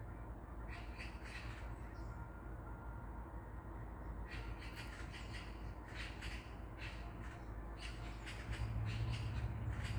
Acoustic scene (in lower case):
park